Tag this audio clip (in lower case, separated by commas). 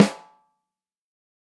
snare drum, musical instrument, music, drum, percussion